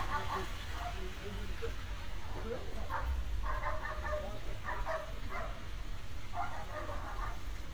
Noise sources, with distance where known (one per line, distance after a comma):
dog barking or whining